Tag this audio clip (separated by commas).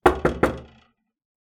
Door, Knock, home sounds